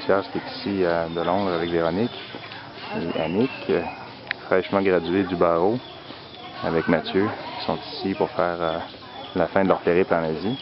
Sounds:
speech
outside, rural or natural

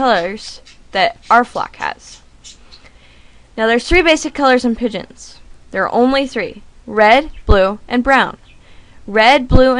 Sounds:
bird
speech

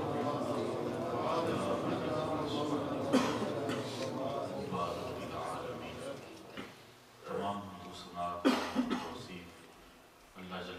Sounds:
speech
monologue

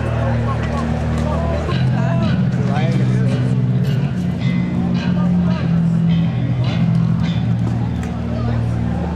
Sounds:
crowd
speech
music

